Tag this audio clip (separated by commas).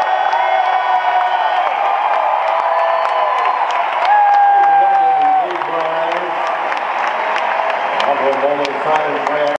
Speech